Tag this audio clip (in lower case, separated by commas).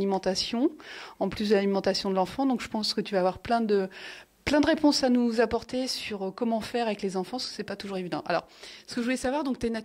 speech